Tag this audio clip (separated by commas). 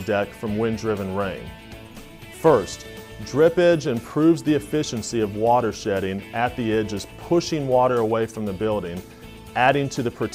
Speech, Music